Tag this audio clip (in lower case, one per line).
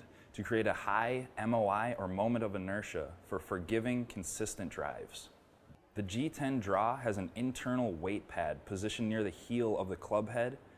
speech